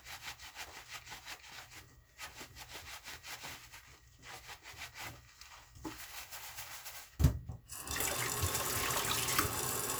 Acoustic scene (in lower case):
kitchen